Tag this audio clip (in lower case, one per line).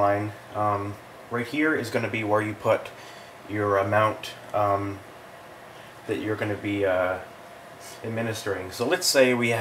speech